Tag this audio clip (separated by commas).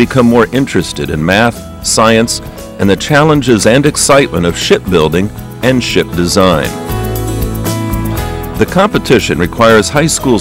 Speech, Music